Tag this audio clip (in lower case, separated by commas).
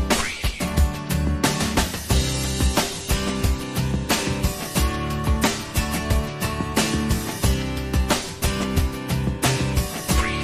music, pop music